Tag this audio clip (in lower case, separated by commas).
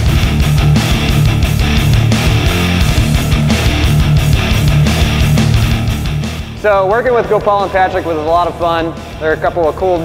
speech, music